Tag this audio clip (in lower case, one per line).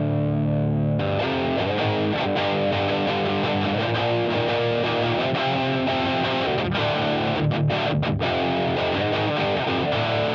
musical instrument
electric guitar
plucked string instrument
guitar
strum
bass guitar
music